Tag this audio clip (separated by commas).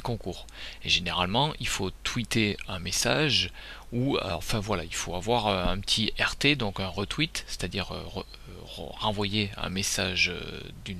Speech